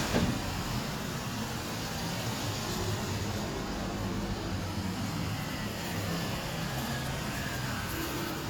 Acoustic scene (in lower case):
street